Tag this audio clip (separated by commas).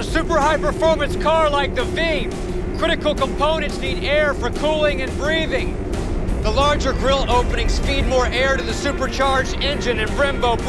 Speech, Music